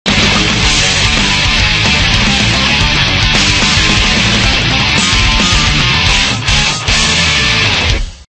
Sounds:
Background music, Music

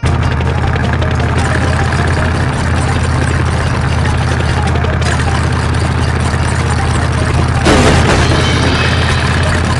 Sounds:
Music

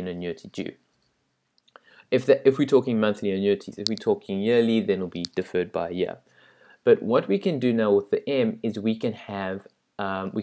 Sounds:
Speech

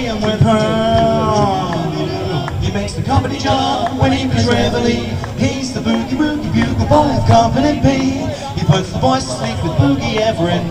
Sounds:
Speech

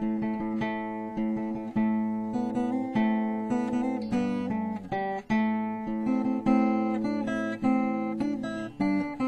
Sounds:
Guitar, Musical instrument, Music, Strum, Plucked string instrument

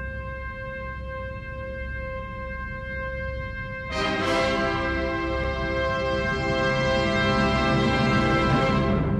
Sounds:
Timpani, Music

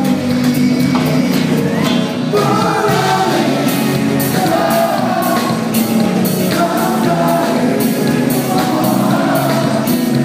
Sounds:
Funny music, Music

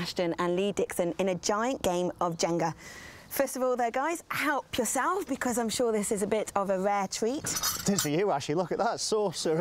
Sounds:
Speech

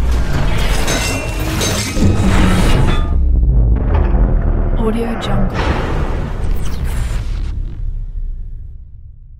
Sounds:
Mechanisms

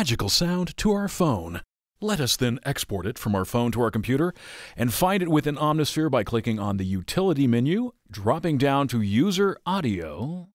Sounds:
Speech

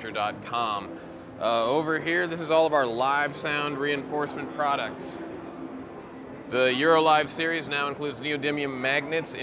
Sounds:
Speech

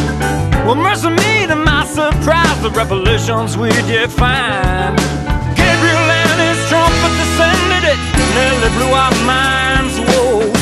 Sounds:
Exciting music, Music

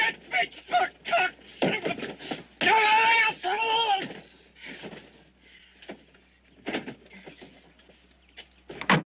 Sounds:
Speech

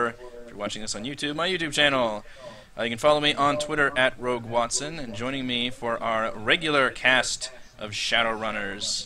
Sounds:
Speech

